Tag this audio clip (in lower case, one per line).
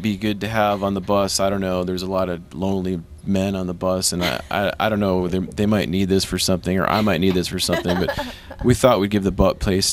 speech